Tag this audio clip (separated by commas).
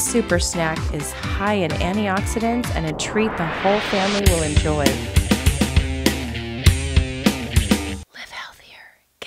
Music, Speech